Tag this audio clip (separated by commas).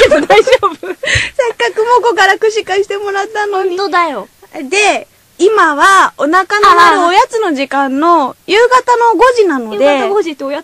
Speech